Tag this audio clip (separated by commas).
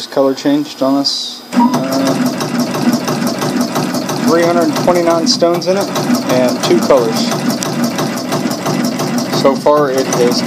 Speech, inside a small room